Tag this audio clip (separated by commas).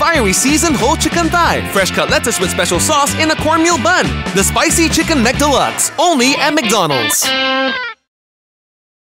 Music, Speech